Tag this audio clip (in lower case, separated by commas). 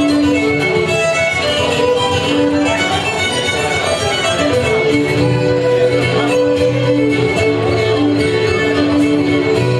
musical instrument, fiddle, music